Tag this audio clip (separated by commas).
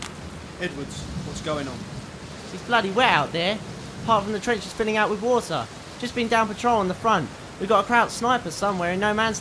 Speech